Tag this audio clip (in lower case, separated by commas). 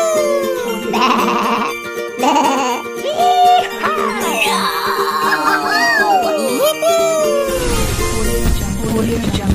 speech, bleat, sheep, music